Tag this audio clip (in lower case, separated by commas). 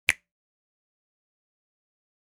hands, finger snapping